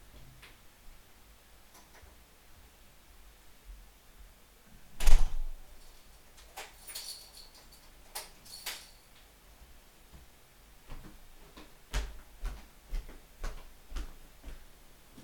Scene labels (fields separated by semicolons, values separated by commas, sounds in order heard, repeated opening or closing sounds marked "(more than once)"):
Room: living room; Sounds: door (more than once), keys, footsteps